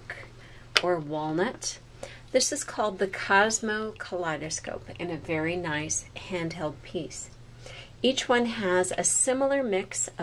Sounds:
Speech

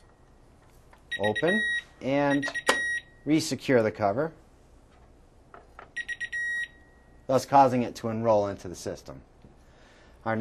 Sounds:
Speech, bleep

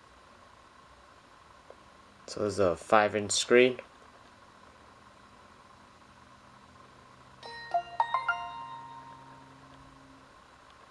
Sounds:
Speech

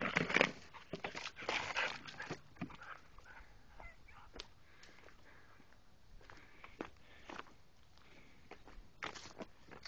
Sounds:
Animal, Dog

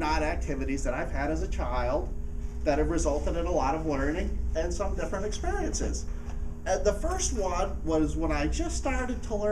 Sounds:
Male speech, Speech

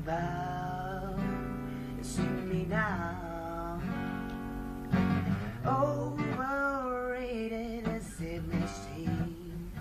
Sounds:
Male singing, Music

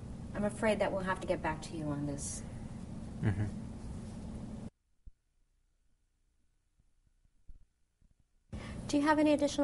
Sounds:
Conversation, Speech

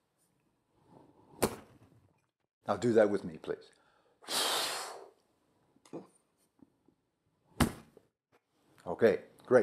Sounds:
Speech

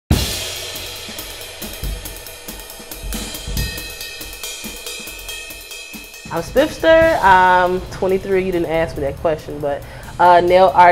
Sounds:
Speech, Cymbal, Music, Snare drum, Hi-hat

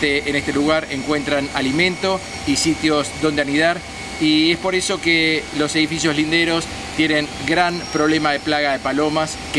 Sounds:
Speech, outside, urban or man-made

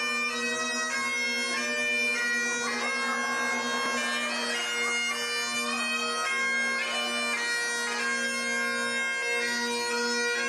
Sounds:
woodwind instrument, playing bagpipes, Bagpipes

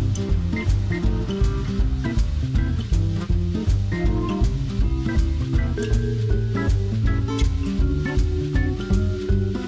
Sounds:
Music

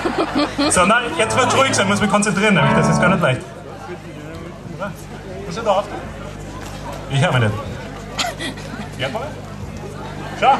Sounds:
Music, Speech, Guitar

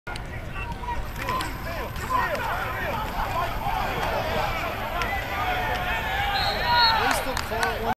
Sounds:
Speech

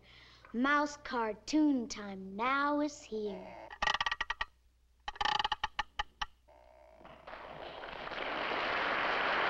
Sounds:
Speech

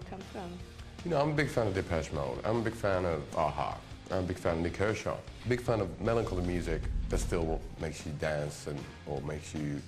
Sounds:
Music, Speech

